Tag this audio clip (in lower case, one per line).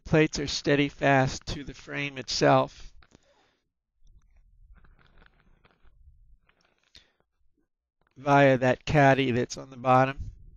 speech